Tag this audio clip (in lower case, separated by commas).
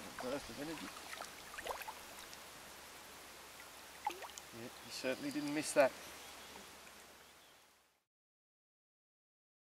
speech, slosh, water